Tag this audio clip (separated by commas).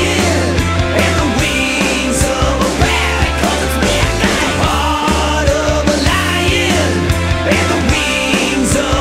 Music